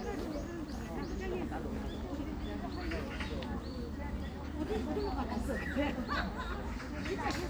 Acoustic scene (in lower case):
park